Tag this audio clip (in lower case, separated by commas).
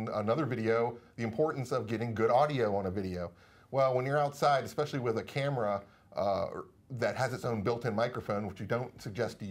speech